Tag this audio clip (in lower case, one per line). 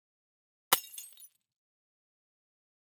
shatter
glass